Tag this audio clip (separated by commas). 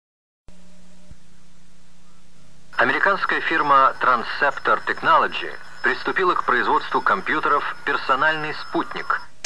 Speech, Music